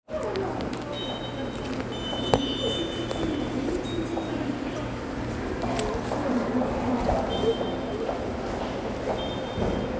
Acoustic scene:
subway station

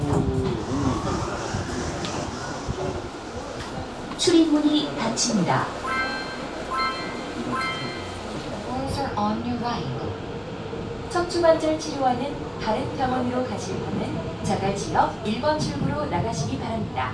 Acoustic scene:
subway train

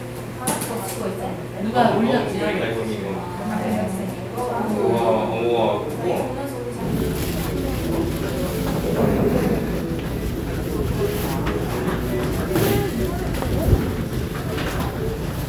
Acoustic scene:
crowded indoor space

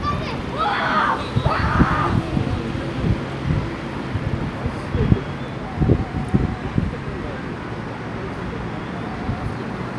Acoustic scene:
residential area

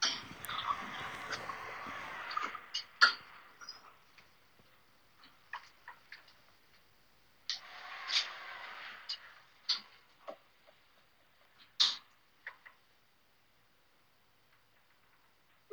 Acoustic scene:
elevator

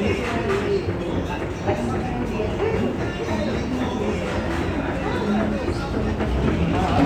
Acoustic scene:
crowded indoor space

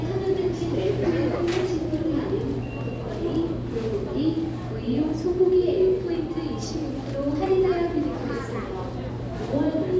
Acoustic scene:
crowded indoor space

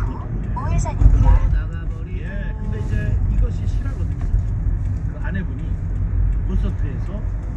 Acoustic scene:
car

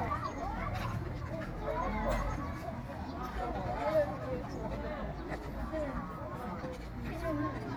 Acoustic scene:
park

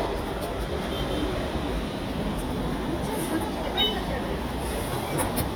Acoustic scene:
subway station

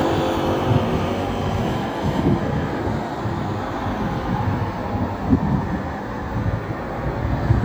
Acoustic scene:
street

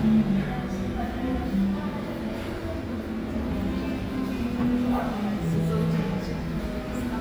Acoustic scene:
cafe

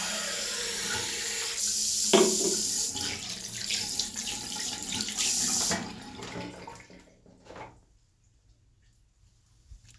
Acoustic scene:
restroom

